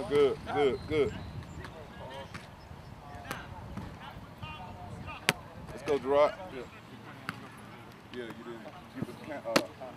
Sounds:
speech

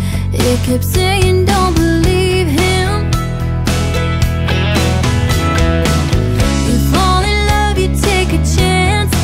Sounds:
music

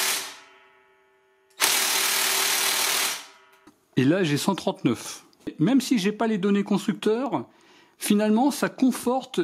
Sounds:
electric grinder grinding

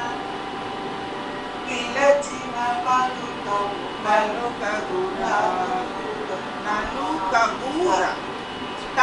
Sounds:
female singing, speech

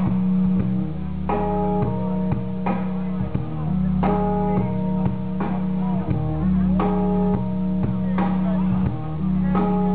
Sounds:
inside a public space, inside a large room or hall, speech, music

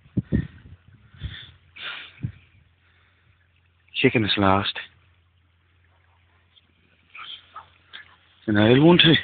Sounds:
speech

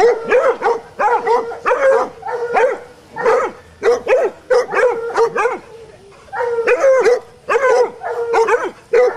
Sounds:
dog baying

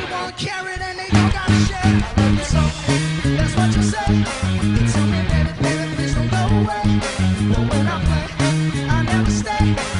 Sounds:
bass guitar, musical instrument, music, song, guitar, plucked string instrument

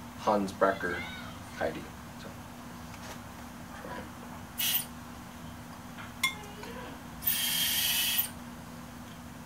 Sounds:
speech

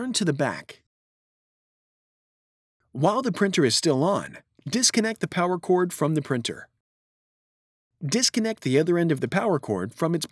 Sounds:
speech

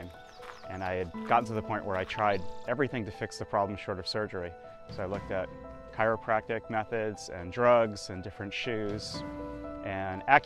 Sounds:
speech, music

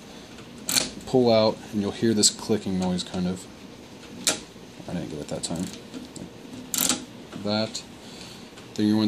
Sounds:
speech

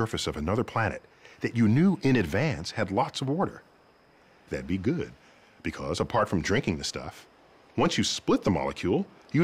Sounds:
speech

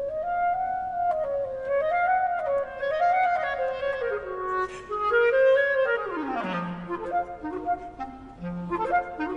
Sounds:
playing clarinet

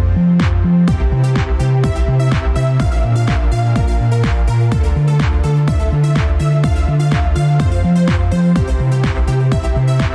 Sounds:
music

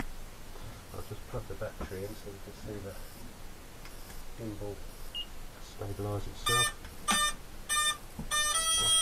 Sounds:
speech, inside a small room

